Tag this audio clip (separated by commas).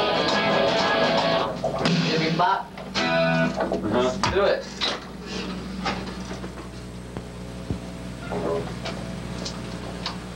Music, Speech